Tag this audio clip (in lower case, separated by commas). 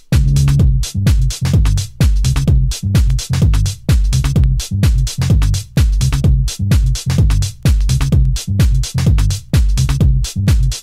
music